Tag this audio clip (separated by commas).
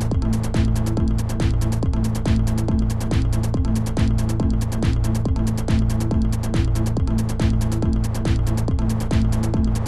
Music